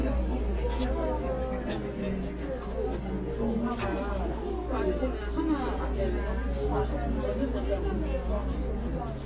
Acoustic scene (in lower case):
crowded indoor space